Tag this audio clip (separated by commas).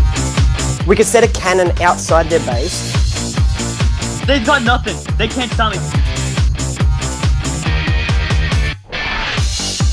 Techno